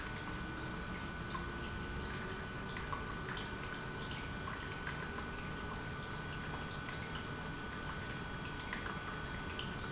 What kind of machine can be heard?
pump